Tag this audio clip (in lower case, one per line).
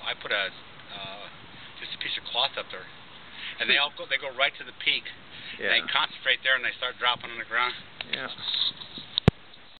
speech